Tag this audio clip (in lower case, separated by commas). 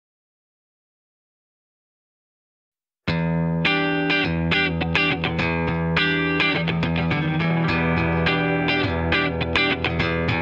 music